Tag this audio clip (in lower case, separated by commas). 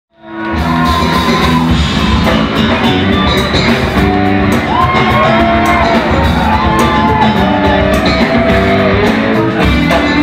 inside a large room or hall, music